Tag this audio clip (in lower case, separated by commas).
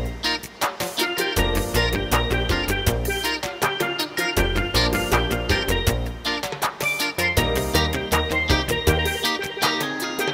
music